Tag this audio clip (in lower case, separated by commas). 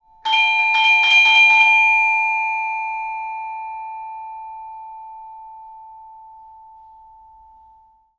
domestic sounds, doorbell, bell, door, alarm